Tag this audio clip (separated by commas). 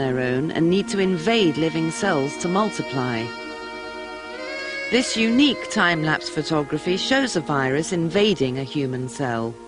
Music, Speech